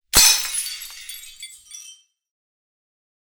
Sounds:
glass, shatter

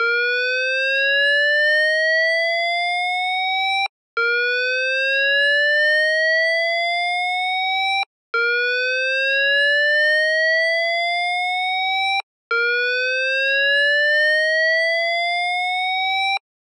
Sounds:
alarm

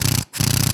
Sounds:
tools, power tool, drill

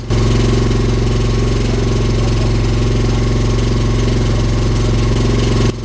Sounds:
engine

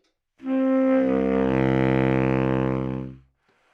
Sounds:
music, musical instrument, wind instrument

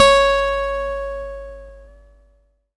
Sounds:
music, plucked string instrument, guitar, musical instrument, acoustic guitar

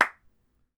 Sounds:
clapping, hands

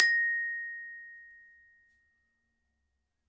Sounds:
music, mallet percussion, musical instrument, percussion, glockenspiel

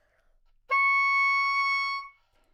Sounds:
music, musical instrument, wind instrument

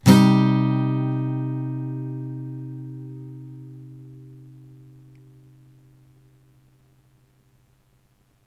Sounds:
music, musical instrument, plucked string instrument, acoustic guitar, guitar

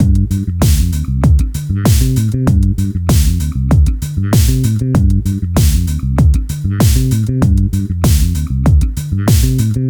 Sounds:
bass guitar, musical instrument, plucked string instrument, music, guitar

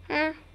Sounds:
speech, human voice

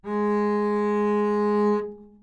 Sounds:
bowed string instrument, music, musical instrument

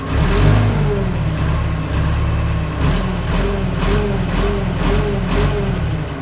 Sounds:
engine, vroom

